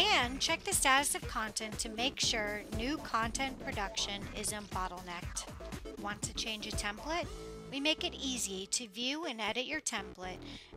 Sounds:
Music, Speech

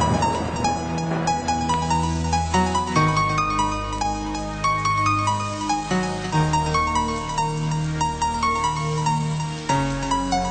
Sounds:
Music

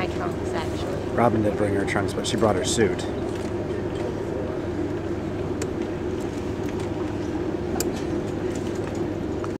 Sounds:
Boat, Speech

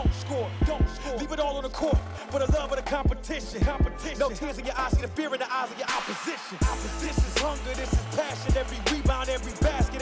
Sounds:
Music

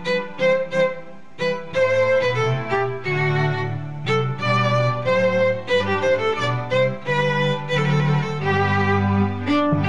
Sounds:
playing violin, Violin, Music

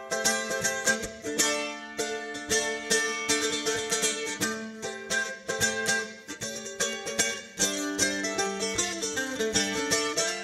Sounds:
playing mandolin

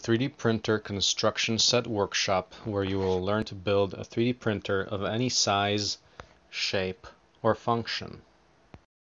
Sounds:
Speech

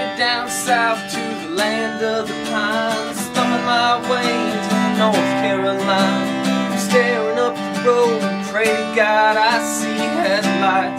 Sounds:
Music

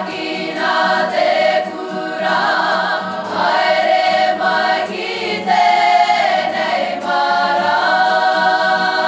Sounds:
Music, A capella

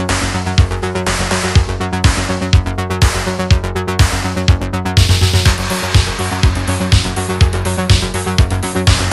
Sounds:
Music

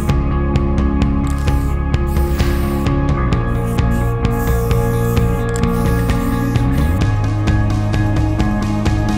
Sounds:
Spray, Music

